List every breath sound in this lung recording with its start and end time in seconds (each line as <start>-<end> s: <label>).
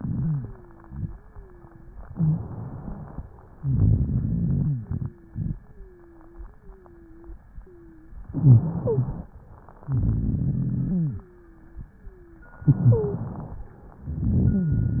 0.00-1.04 s: wheeze
1.06-1.94 s: wheeze
2.12-2.42 s: wheeze
2.12-3.24 s: inhalation
3.60-4.84 s: exhalation
3.60-4.84 s: rhonchi
4.92-5.52 s: wheeze
5.58-6.52 s: wheeze
6.54-7.42 s: wheeze
7.62-8.16 s: wheeze
8.34-9.32 s: inhalation
8.34-9.32 s: wheeze
9.86-11.28 s: exhalation
9.86-11.28 s: rhonchi
10.98-11.86 s: wheeze
11.88-12.56 s: wheeze
12.64-13.26 s: wheeze
12.64-13.58 s: inhalation
14.00-15.00 s: exhalation
14.00-15.00 s: rhonchi